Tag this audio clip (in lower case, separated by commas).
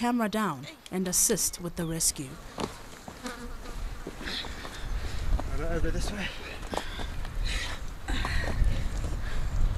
housefly, insect, bee or wasp